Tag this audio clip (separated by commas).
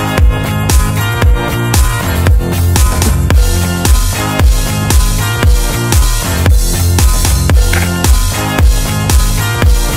Music